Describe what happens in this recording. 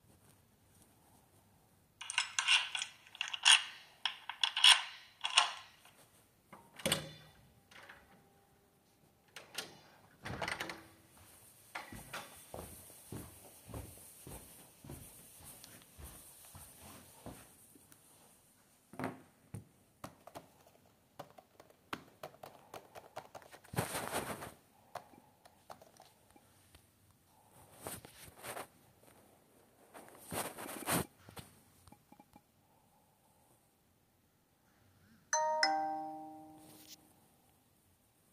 Using key to open to door going to my laptop and typing something and then the phone rings